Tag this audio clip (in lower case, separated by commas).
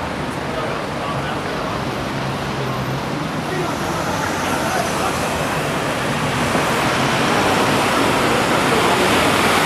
speech babble, vehicle